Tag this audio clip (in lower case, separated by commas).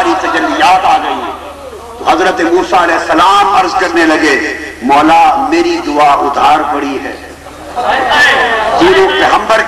speech, man speaking, narration